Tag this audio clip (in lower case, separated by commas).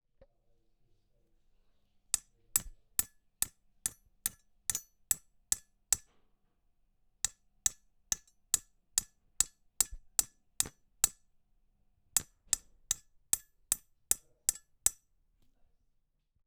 hammer, tools